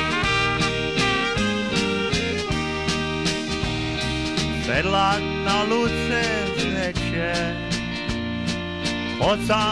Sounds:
Music

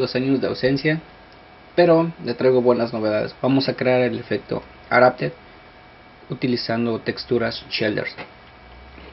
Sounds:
Speech

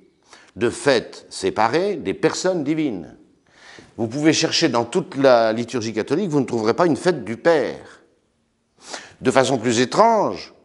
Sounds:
Speech

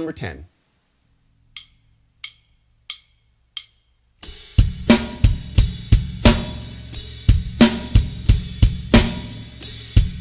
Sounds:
Bass drum, Speech, Music

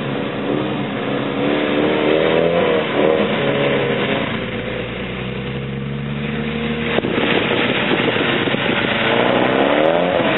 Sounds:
Motor vehicle (road), Car, vroom, auto racing, Vehicle

